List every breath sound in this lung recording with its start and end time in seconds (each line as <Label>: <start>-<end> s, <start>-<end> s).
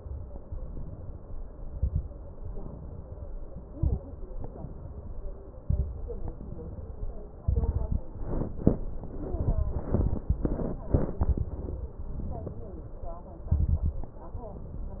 Inhalation: 0.45-1.31 s, 2.37-3.23 s, 4.33-5.38 s, 6.14-7.26 s, 12.03-13.21 s, 14.37-15.00 s
Exhalation: 1.69-2.09 s, 3.67-4.06 s, 5.57-6.00 s, 7.45-8.07 s, 13.51-14.14 s
Crackles: 1.69-2.09 s, 3.67-4.06 s, 5.57-6.00 s, 7.45-8.07 s, 13.51-14.14 s